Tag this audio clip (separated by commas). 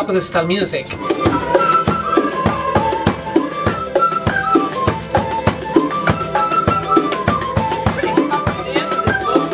Music, Speech